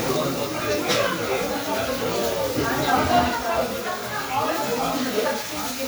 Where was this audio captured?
in a restaurant